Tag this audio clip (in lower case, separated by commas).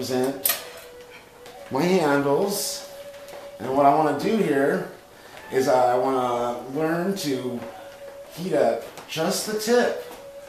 speech, music